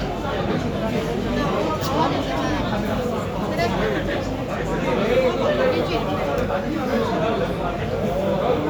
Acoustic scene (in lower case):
crowded indoor space